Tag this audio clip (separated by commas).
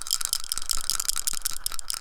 Musical instrument, Rattle, Rattle (instrument), Percussion, Music